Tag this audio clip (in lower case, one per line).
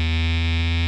musical instrument
music